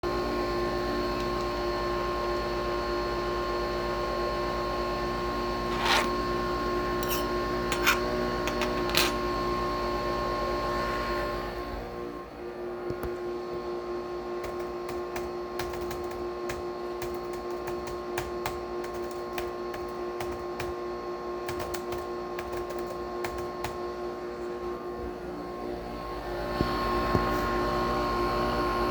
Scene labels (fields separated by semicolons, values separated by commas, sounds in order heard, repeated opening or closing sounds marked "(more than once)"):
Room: kitchen; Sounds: coffee machine, cutlery and dishes, keyboard typing